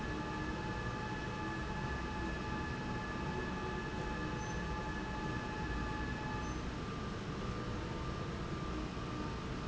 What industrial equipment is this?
slide rail